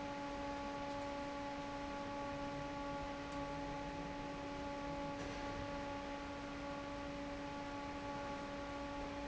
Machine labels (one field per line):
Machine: fan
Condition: normal